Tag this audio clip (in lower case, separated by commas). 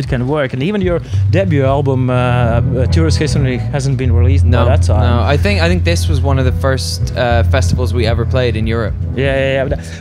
music, speech